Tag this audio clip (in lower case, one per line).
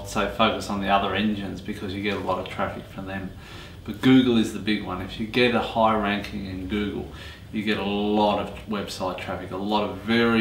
speech